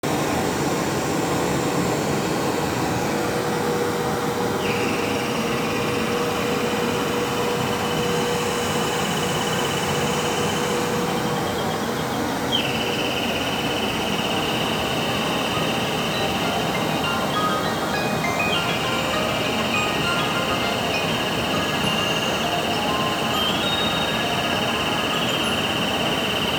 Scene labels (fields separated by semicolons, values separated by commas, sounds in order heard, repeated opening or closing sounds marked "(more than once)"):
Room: living room; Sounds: vacuum cleaner, bell ringing, phone ringing